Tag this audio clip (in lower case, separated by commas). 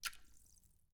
liquid, splatter